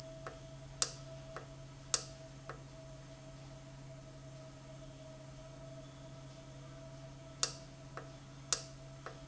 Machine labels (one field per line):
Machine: valve